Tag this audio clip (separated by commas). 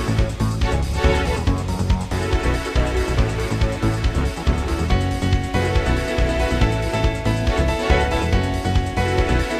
Music, Pop music